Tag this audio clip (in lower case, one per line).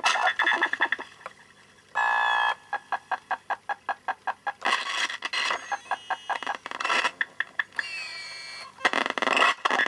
keyboard (musical)
music
piano
musical instrument